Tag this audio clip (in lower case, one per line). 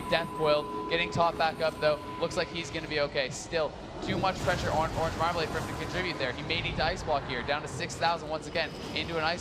speech